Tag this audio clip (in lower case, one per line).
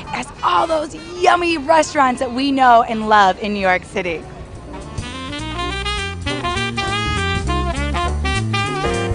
speech
music